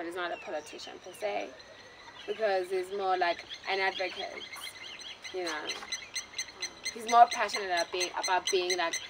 Birds chirping and squeaking in the background with people talking